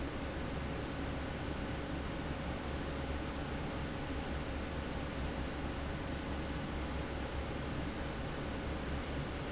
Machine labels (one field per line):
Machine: fan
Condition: normal